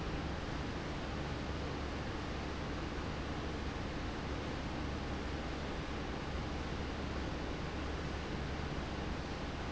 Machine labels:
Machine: fan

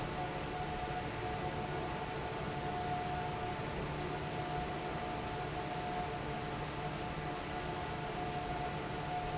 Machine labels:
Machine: fan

